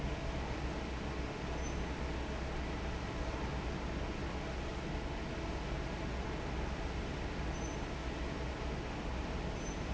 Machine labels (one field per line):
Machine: fan